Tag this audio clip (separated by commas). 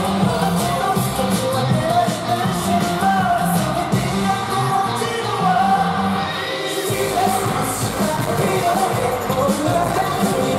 Music